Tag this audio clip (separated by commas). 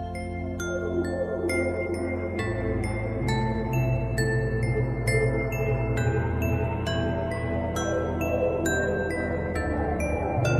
Music